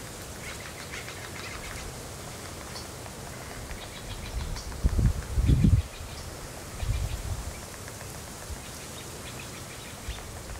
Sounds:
woodpecker pecking tree

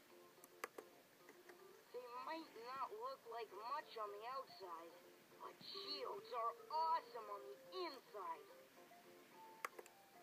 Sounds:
Speech

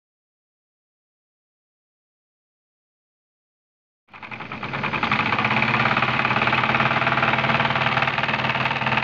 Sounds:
Heavy engine (low frequency)

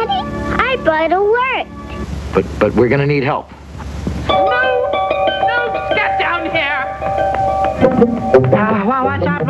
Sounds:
Music, Speech

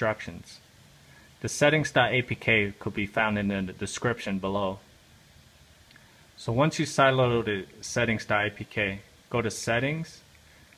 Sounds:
Speech

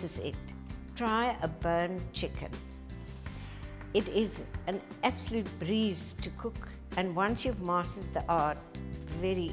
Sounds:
Speech, Music

